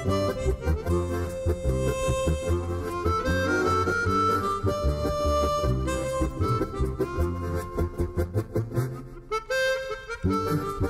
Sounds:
playing harmonica

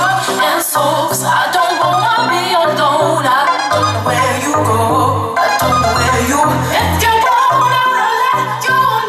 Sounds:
house music, music

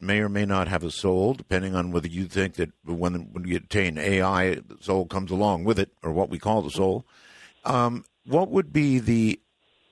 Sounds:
speech

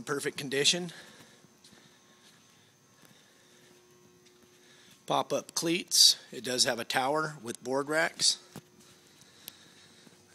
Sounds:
speech

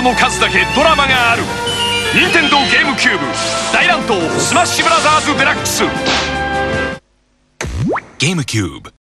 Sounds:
speech, music

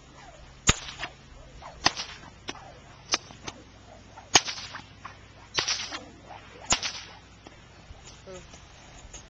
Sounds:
whip

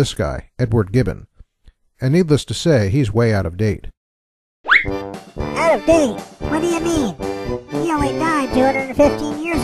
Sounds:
speech, music

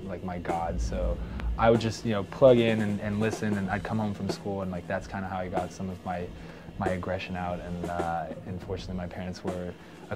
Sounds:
music, speech

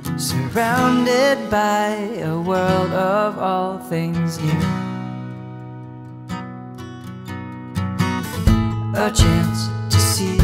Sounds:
music

